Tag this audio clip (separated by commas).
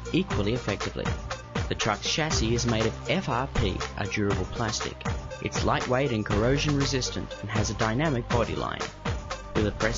Speech, Music